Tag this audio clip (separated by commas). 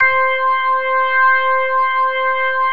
Musical instrument, Organ, Music, Keyboard (musical)